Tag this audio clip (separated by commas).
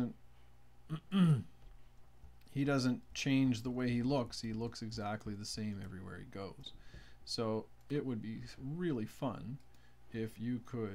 Speech